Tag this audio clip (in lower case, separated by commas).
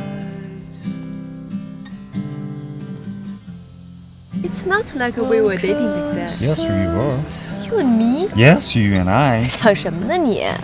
music, speech